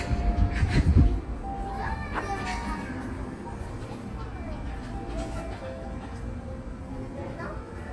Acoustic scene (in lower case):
park